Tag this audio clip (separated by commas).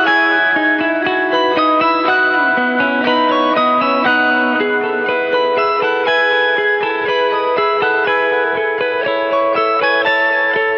Musical instrument, Strum, Plucked string instrument, Electric guitar, Music, Guitar